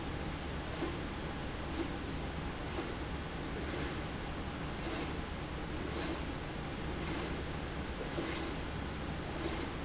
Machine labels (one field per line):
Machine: slide rail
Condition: abnormal